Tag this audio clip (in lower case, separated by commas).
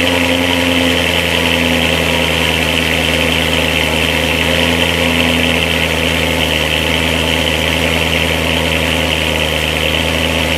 car, vehicle